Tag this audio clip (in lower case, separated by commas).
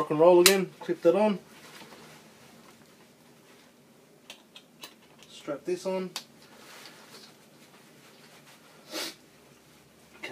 speech, inside a small room